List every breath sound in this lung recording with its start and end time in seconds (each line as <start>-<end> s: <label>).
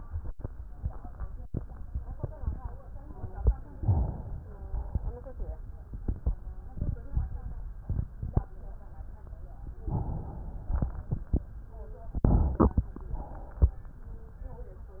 3.74-4.48 s: inhalation
4.48-5.22 s: exhalation
9.83-10.74 s: inhalation
12.18-13.04 s: inhalation
13.17-13.95 s: exhalation